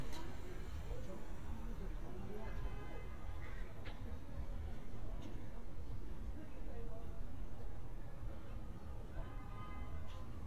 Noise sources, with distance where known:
car horn, far; person or small group talking

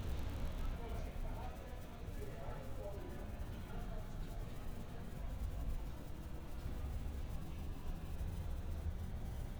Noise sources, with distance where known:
unidentified human voice

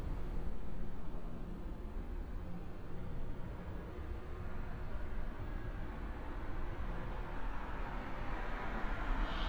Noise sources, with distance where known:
medium-sounding engine

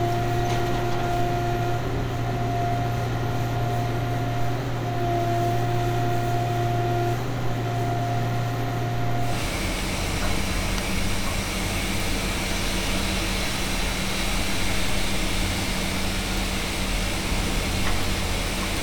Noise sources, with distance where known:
unidentified impact machinery, near

